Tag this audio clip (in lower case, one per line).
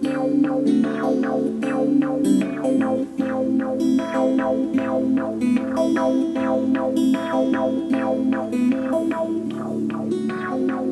strum
music
plucked string instrument
musical instrument
guitar